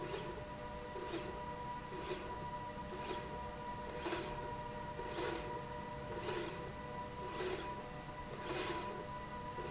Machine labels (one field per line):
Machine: slide rail